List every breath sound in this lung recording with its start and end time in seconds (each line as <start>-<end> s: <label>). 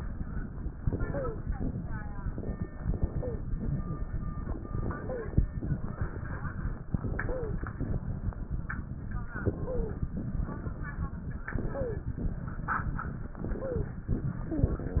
0.74-1.56 s: inhalation
1.02-1.43 s: wheeze
2.73-3.55 s: inhalation
3.11-3.47 s: wheeze
4.61-5.45 s: inhalation
4.99-5.35 s: wheeze
6.96-7.68 s: inhalation
7.19-7.63 s: wheeze
9.32-10.15 s: inhalation
9.53-10.07 s: wheeze
11.50-12.20 s: inhalation
11.69-12.12 s: wheeze
13.38-14.13 s: inhalation
13.59-13.95 s: wheeze